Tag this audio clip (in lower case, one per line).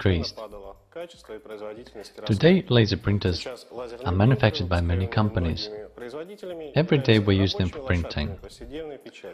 speech